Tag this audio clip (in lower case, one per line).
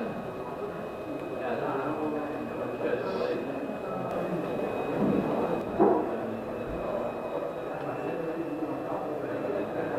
speech
truck